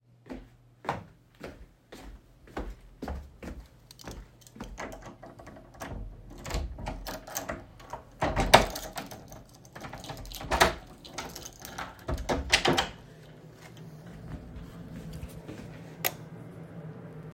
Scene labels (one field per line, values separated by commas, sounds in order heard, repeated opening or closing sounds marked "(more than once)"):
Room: hallway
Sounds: footsteps, keys, door, light switch